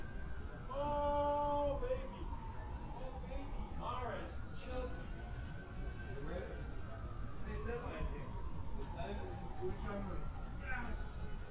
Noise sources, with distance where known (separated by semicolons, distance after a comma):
siren, far